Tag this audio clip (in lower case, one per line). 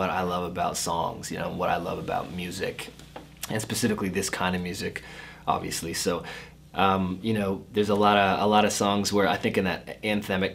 speech